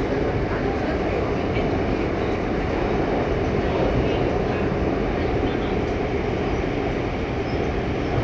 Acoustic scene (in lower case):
subway train